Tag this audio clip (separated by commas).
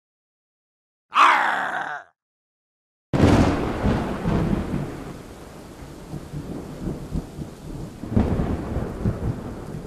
Thunderstorm, Rain, Thunder